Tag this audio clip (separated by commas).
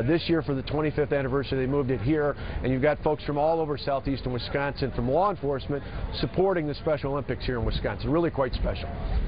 Speech